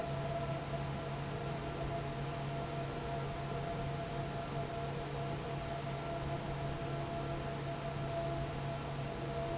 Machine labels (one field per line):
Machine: fan